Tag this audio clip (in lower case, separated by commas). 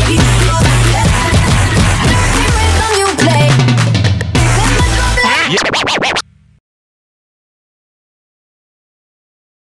music, drum kit, musical instrument, drum